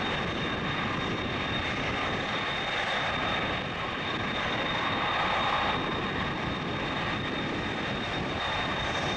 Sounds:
aircraft
vehicle
outside, urban or man-made
aircraft engine
airplane

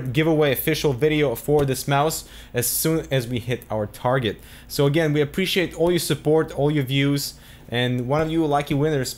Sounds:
speech

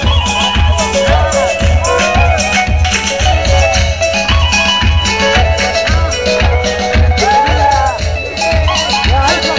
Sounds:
electric piano
keyboard (musical)
piano

